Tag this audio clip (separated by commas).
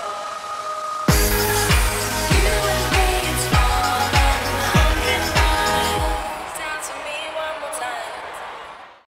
Soundtrack music, Music